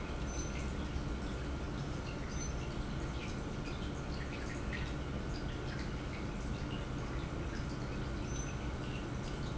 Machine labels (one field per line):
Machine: pump